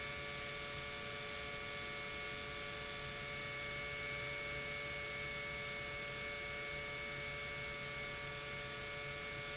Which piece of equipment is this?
pump